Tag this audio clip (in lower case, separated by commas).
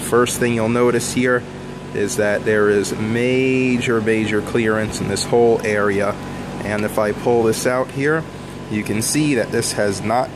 speech, pump (liquid)